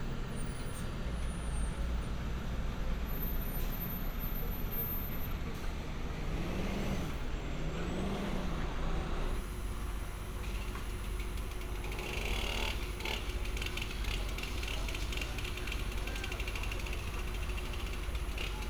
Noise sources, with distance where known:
small-sounding engine, near

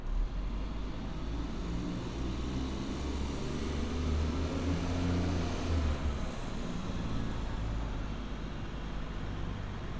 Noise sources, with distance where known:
engine of unclear size, near

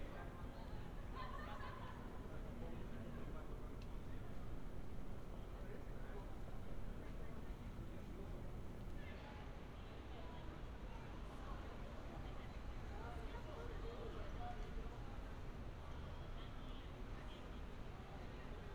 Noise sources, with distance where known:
person or small group talking

